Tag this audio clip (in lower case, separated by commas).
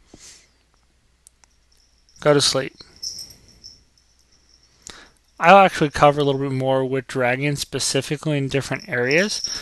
speech